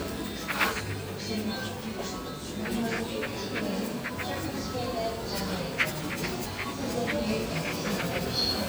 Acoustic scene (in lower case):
crowded indoor space